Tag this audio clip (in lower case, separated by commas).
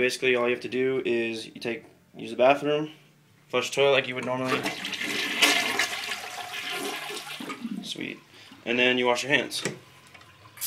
water, toilet flush, speech